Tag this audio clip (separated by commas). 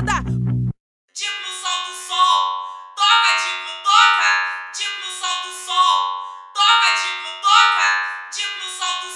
Music